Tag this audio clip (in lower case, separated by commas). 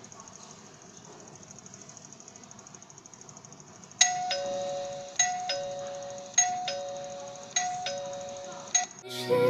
doorbell, music